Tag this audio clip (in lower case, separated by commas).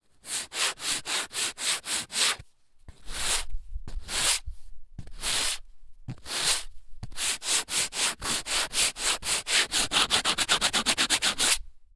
tools